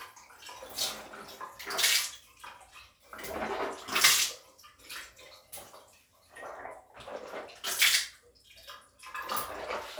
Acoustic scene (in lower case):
restroom